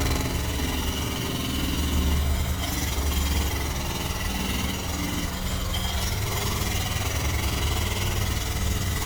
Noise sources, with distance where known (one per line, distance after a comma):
jackhammer, near